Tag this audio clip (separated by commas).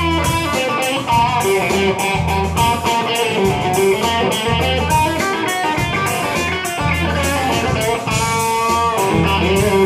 Electric guitar, Musical instrument, Guitar, Music, Plucked string instrument